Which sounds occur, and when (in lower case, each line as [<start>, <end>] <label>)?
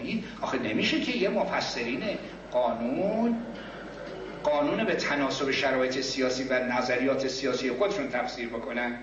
[0.00, 0.18] man speaking
[0.00, 9.02] mechanisms
[0.16, 0.30] breathing
[0.34, 2.24] man speaking
[2.51, 3.50] man speaking
[3.47, 4.01] breathing
[4.34, 9.02] man speaking